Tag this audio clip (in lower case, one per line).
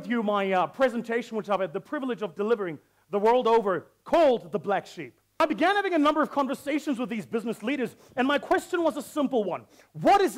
speech